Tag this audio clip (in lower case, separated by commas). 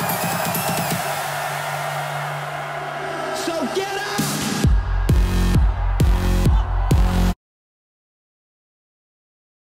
music, exciting music